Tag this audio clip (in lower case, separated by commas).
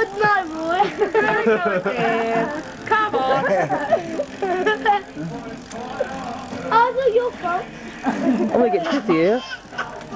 speech, music